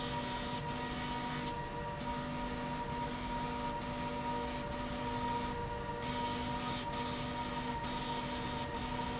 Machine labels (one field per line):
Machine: slide rail